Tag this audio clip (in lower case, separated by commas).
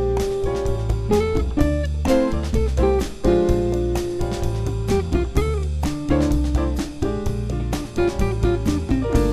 music